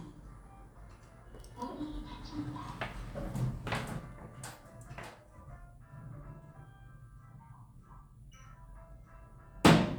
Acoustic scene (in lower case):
elevator